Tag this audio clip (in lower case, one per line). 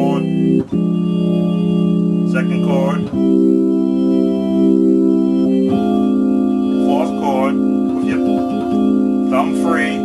hammond organ
electronic organ
electric piano
keyboard (musical)
organ
piano
playing hammond organ